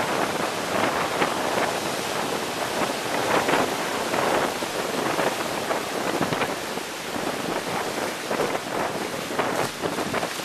Wind is blowing hard and waves are crashing